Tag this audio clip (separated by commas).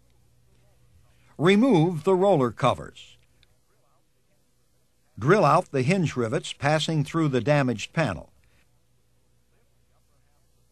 Speech